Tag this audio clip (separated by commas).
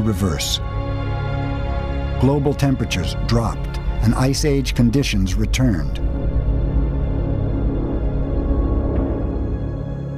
Music, Speech